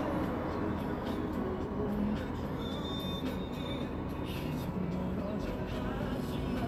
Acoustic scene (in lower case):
street